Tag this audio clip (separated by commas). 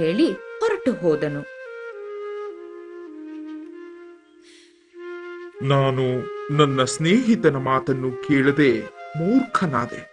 Flute